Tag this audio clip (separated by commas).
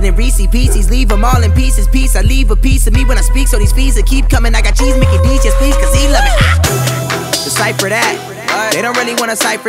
rapping